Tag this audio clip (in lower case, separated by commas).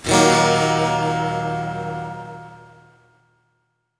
musical instrument, guitar, plucked string instrument, music, acoustic guitar, electric guitar